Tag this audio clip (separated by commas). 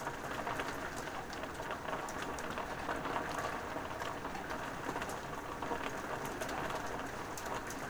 Water, Rain